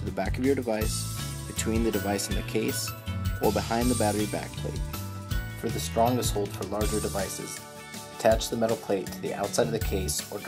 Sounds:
speech, music

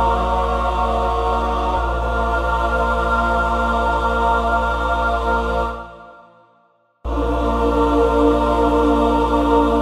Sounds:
song, music

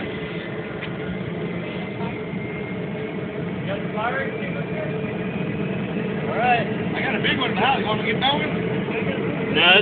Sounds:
speech, engine, vehicle, aircraft

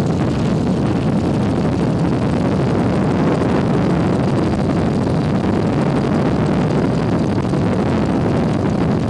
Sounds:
wind, speedboat, water vehicle

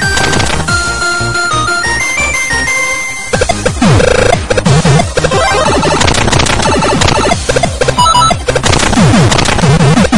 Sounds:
techno, music, electronic music

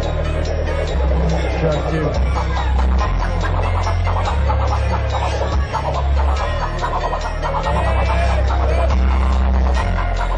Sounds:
music, crowd

